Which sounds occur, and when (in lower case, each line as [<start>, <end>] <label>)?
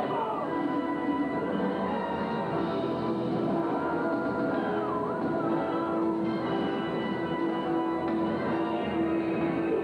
[0.01, 9.83] music
[0.10, 0.61] human voice
[4.54, 4.90] human voice
[7.37, 7.50] generic impact sounds
[8.06, 8.15] generic impact sounds